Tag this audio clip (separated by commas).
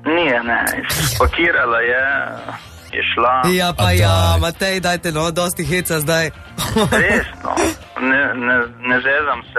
Radio, Music, Speech